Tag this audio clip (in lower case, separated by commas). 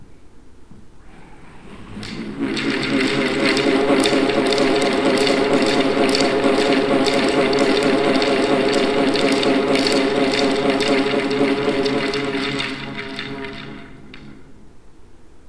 mechanisms, mechanical fan